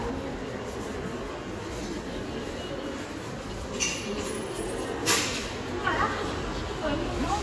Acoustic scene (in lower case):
crowded indoor space